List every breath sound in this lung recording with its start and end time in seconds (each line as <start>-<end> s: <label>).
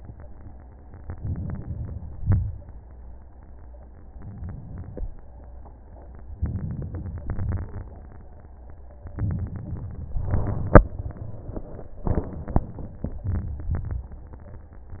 1.04-2.14 s: inhalation
2.14-2.69 s: exhalation
4.13-4.88 s: inhalation
4.88-5.40 s: exhalation
6.36-7.20 s: crackles
6.38-7.23 s: inhalation
7.22-7.87 s: crackles
7.23-7.89 s: exhalation
9.10-10.27 s: inhalation
9.11-10.25 s: crackles
10.27-10.93 s: exhalation
10.27-10.93 s: crackles
13.27-13.72 s: inhalation
13.27-13.72 s: crackles
13.77-14.22 s: exhalation
13.77-14.22 s: crackles